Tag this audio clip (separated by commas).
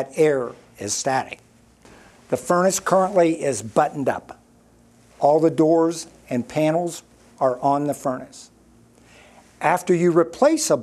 Speech